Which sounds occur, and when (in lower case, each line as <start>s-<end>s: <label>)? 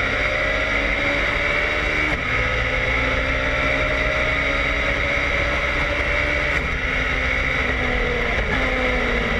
0.0s-9.3s: car